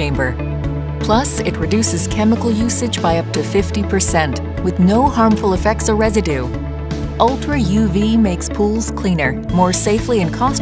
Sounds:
speech
music

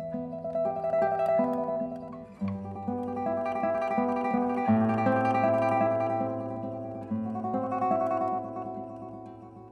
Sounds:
guitar
plucked string instrument
classical music
mandolin
musical instrument
music

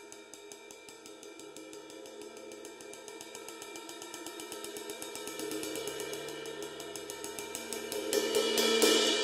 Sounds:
hi-hat
music

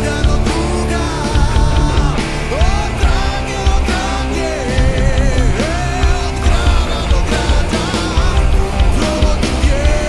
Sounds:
music

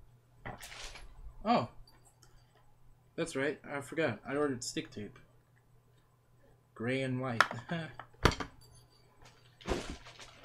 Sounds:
speech

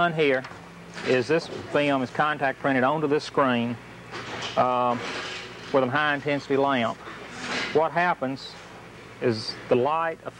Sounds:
speech
inside a large room or hall

